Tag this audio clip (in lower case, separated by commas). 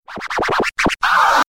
music, musical instrument, scratching (performance technique)